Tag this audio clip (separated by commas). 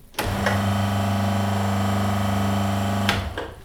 Mechanisms